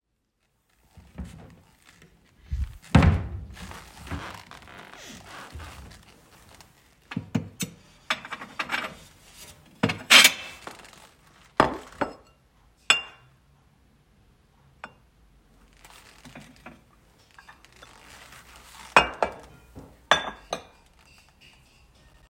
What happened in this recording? I opened the drawer and took out several plates and glasses. I placed them on the table, producing clattering sounds from the dishes. After finishing, I closed the drawer.